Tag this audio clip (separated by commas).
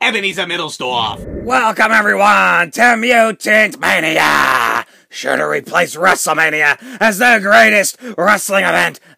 Speech, inside a small room